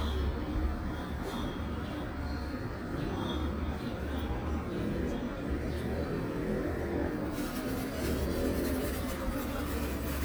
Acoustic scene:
residential area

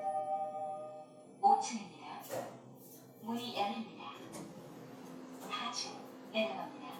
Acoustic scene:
elevator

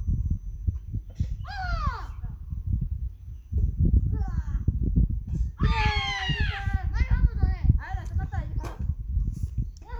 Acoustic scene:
park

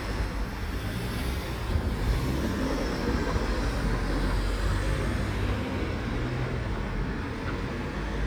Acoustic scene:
street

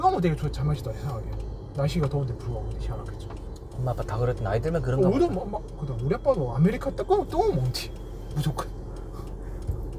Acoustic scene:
car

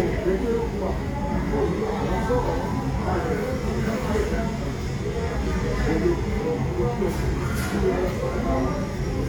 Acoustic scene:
crowded indoor space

